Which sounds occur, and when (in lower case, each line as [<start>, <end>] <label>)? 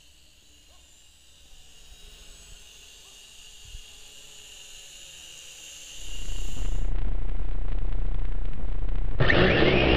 [0.00, 9.95] electric rotor drone
[0.63, 0.86] bark
[2.97, 3.18] bark
[5.94, 9.20] noise